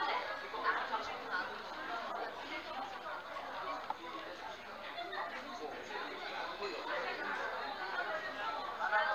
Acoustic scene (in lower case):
crowded indoor space